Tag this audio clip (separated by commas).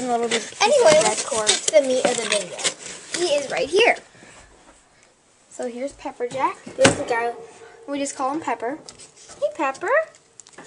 Speech